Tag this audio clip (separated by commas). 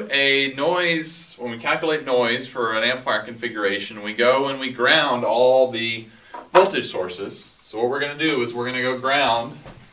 Speech